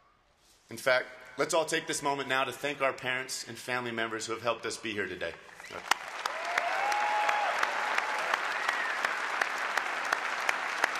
Man giving a speech followed by applause